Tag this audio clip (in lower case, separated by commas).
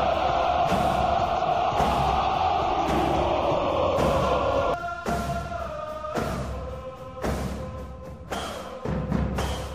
music